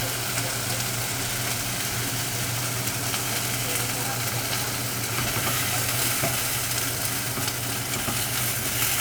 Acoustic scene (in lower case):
kitchen